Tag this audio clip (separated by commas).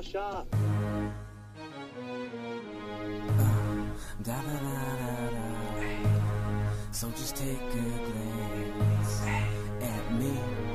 Music, Middle Eastern music